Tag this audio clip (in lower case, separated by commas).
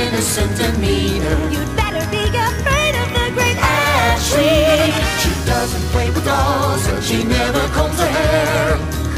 music